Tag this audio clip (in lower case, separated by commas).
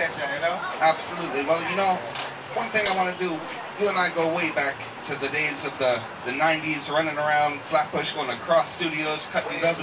speech, speech babble